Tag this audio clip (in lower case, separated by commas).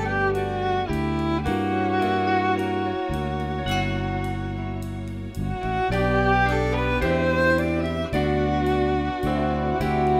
bowed string instrument, fiddle